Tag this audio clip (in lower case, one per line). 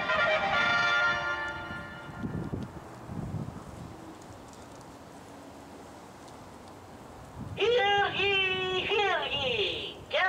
speech
music